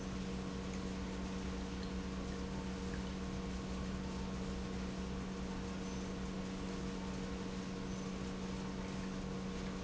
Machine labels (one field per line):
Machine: pump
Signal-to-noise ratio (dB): 0 dB